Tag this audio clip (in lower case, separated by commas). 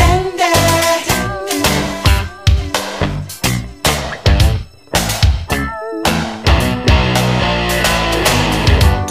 disco, music